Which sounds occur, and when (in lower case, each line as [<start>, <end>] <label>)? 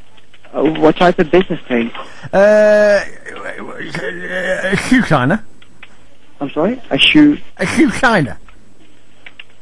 [0.00, 9.61] background noise
[0.16, 1.98] generic impact sounds
[0.48, 8.39] conversation
[0.51, 1.86] male speech
[1.92, 2.25] breathing
[2.31, 4.75] human voice
[3.24, 3.58] generic impact sounds
[3.88, 4.01] generic impact sounds
[4.64, 5.36] male speech
[5.55, 5.67] generic impact sounds
[5.80, 5.94] generic impact sounds
[6.41, 6.77] male speech
[6.91, 7.40] male speech
[7.55, 8.38] male speech
[8.41, 8.50] generic impact sounds
[9.22, 9.43] generic impact sounds